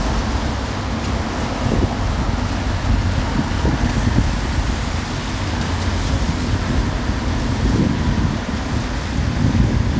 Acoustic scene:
street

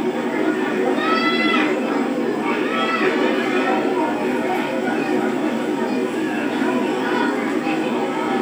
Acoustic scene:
park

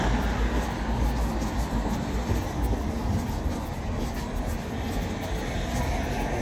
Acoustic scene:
street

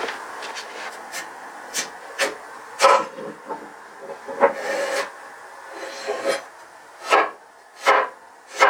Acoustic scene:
kitchen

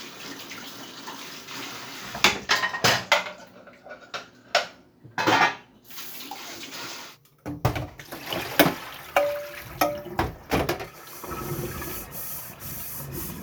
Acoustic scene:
kitchen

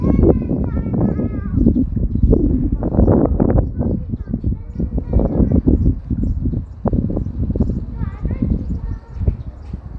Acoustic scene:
residential area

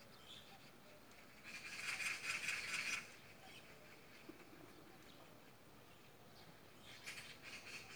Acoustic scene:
park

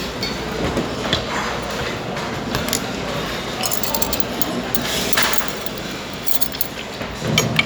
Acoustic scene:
restaurant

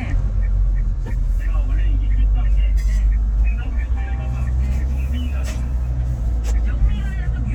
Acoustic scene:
car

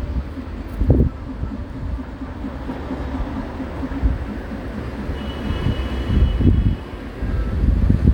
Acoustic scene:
street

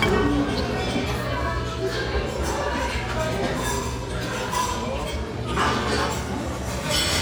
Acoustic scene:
restaurant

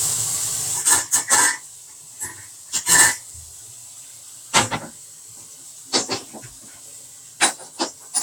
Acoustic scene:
kitchen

